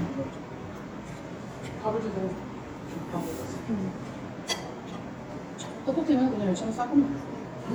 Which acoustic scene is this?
restaurant